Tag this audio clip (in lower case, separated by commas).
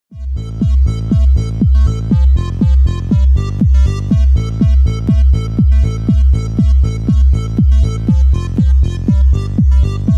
electronica, music